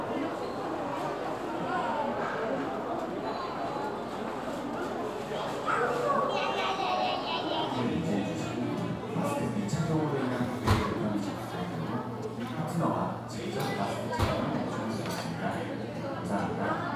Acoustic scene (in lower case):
crowded indoor space